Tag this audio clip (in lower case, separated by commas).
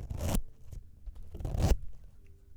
zipper (clothing), domestic sounds